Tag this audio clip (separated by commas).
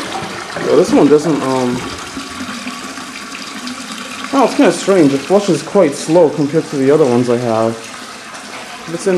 Water, Toilet flush